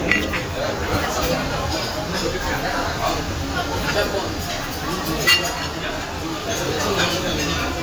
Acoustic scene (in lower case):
crowded indoor space